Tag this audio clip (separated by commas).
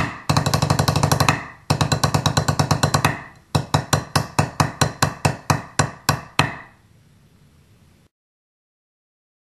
Music, Drum, Musical instrument